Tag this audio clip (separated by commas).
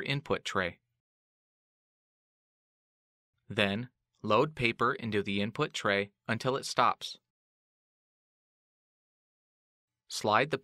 Speech